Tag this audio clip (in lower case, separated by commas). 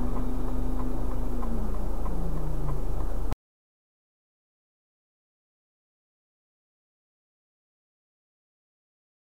vehicle